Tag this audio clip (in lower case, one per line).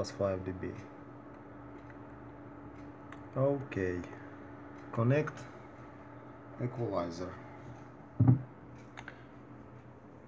speech